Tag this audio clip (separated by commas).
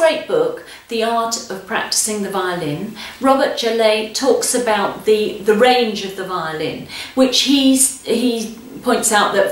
Speech